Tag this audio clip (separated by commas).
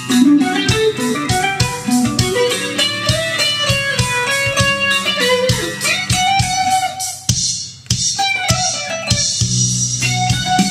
Plucked string instrument, Guitar, Musical instrument, Strum, Electric guitar, Music